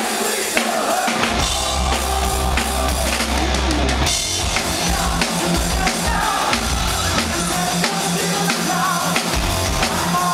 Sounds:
Blues, Music

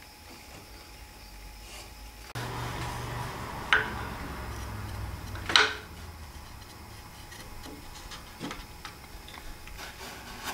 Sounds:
Rub, Wood

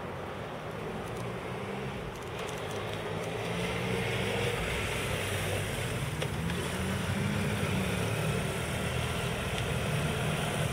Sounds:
Medium engine (mid frequency), vroom, Engine, Accelerating, Vehicle

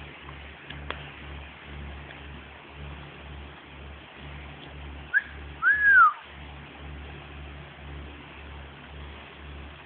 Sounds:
Motorboat, Vehicle

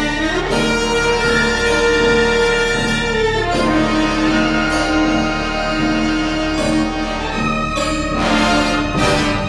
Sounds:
fiddle, Bowed string instrument

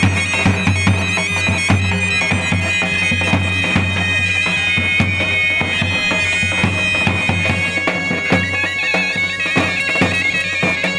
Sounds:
Music, Bagpipes

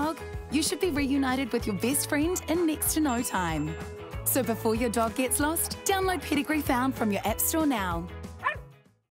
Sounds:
Music, Bow-wow, Speech

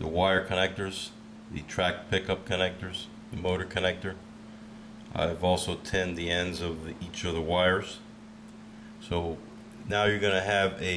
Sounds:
Speech

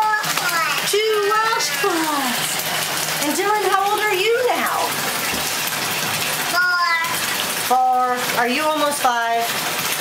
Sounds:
Speech, Bathtub (filling or washing), kid speaking

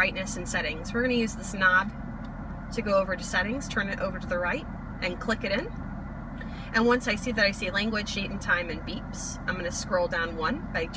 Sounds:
Speech

